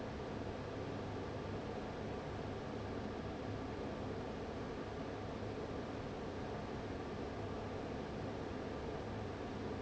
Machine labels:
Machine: fan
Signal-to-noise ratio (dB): 6 dB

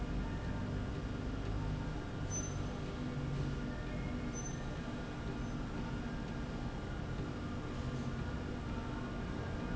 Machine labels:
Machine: slide rail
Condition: normal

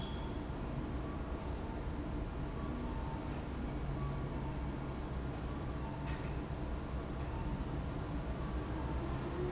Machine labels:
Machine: fan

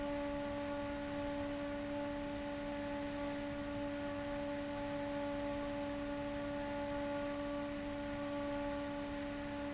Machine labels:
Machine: fan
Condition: abnormal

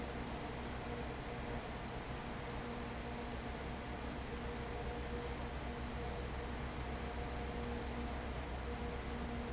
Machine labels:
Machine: fan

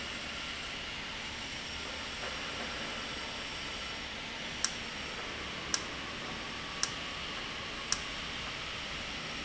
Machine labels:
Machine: valve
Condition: normal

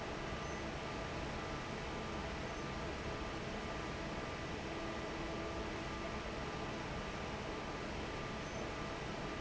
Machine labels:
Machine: fan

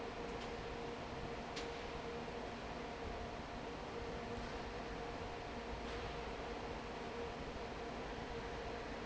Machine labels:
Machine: fan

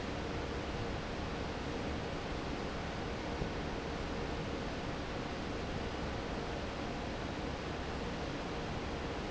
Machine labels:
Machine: fan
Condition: normal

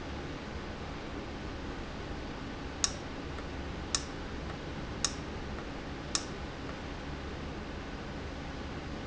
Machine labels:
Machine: valve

